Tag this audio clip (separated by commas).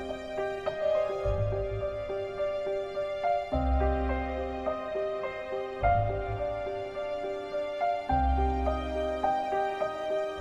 Music